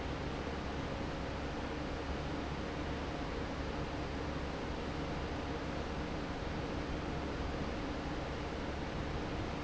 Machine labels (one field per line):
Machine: fan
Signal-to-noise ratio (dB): -6 dB